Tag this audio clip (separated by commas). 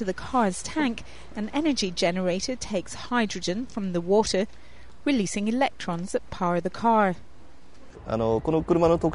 Speech